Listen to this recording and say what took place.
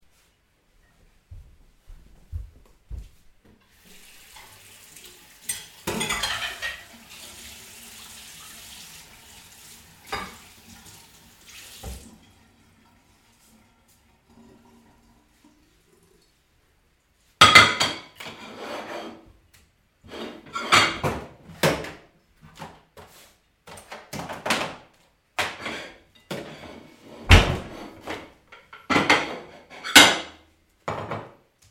I started washing my dishes in running water. After I washed a mug, I realized that my clean dishes were not in place and were scattered around, so I started sorting them neatly.